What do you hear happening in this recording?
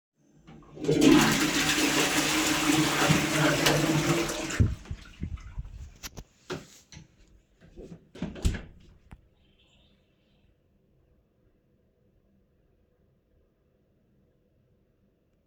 i flush the toilet, turn off the light, and close the door.